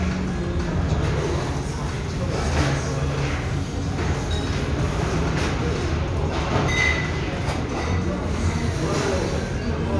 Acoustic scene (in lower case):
restaurant